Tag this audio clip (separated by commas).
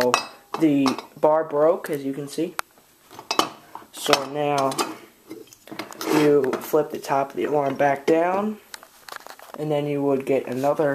Crackle, Speech